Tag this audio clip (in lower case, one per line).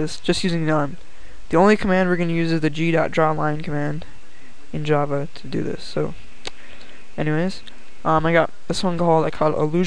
speech